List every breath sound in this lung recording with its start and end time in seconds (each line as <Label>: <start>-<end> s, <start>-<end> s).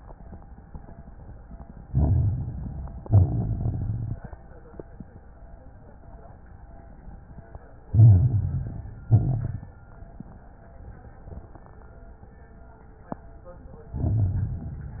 Inhalation: 1.82-3.00 s, 7.86-9.03 s, 13.91-15.00 s
Exhalation: 3.04-4.21 s, 9.07-9.77 s
Crackles: 1.82-3.00 s, 3.04-4.21 s, 7.86-9.03 s, 9.07-9.77 s, 13.91-15.00 s